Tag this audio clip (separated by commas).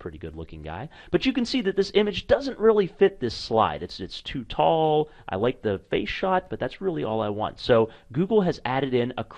Speech